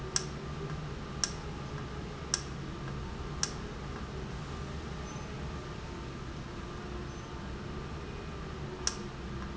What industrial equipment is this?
valve